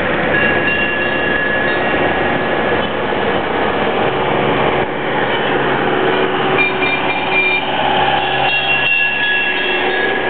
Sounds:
vehicle, auto racing, car

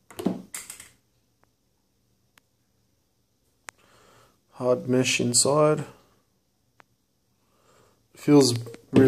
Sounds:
speech, inside a small room

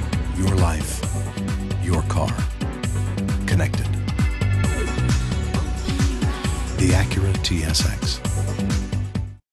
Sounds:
speech, house music, tender music, music

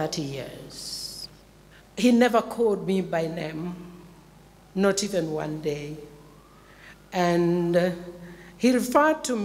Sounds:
speech

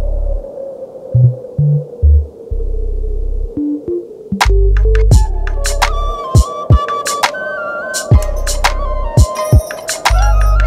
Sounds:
wind noise (microphone), music

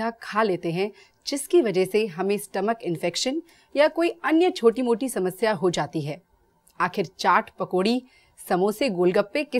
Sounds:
speech

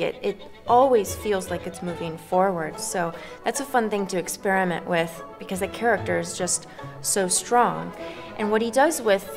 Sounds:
violin, music, speech, musical instrument

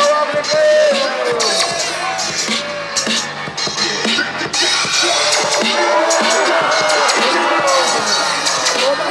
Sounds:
speech, music

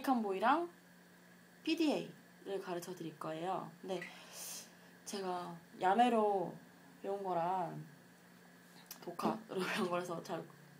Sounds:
speech

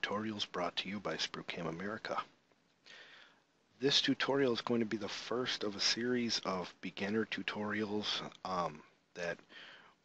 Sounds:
speech

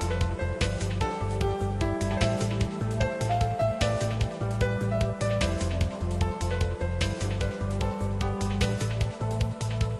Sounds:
tender music, music

